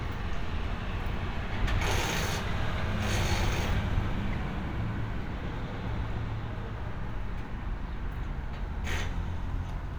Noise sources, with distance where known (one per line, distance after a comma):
jackhammer